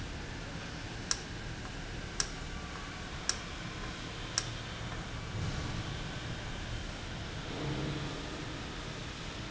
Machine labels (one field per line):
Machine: valve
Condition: normal